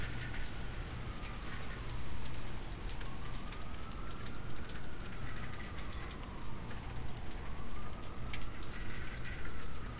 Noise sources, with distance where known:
siren, far

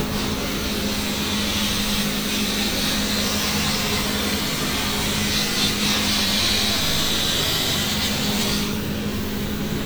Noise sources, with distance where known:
small or medium rotating saw, near

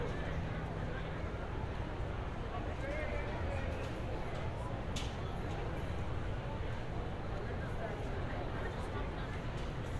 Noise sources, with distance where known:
unidentified human voice, far

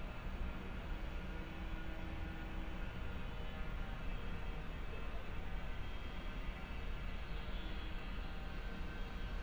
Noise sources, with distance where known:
unidentified powered saw, far

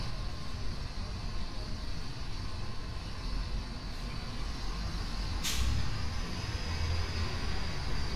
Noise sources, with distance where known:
large-sounding engine, near

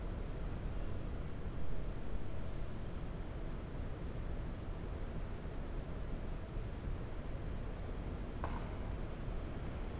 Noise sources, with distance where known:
non-machinery impact, far

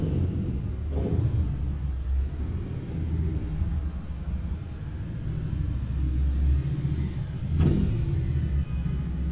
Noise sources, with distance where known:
medium-sounding engine

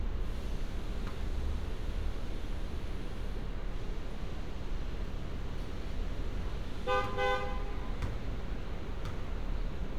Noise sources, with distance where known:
car horn, near

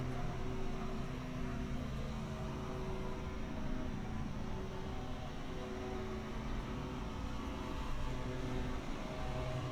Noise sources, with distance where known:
small-sounding engine, far

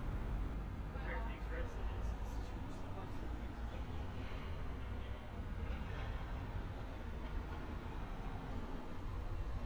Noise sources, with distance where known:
person or small group talking

